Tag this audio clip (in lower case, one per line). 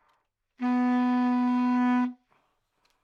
wind instrument
music
musical instrument